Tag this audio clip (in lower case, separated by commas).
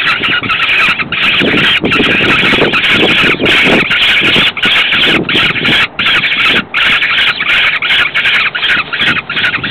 bird, animal